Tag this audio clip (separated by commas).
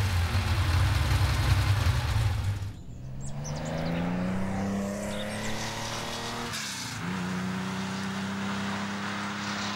outside, rural or natural, Race car, Vehicle, Car